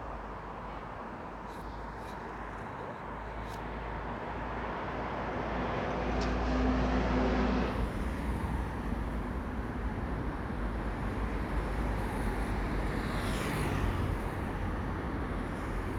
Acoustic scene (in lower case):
street